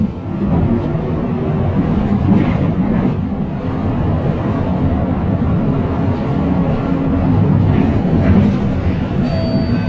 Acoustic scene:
bus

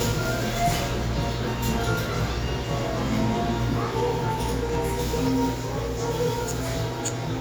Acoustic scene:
cafe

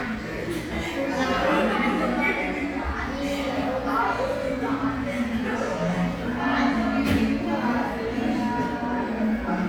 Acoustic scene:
crowded indoor space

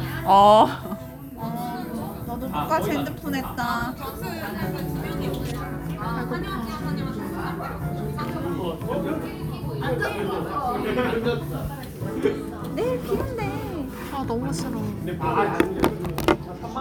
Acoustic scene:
crowded indoor space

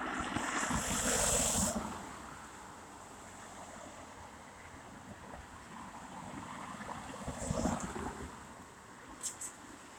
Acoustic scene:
street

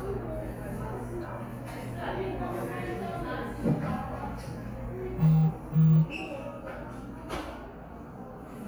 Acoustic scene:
cafe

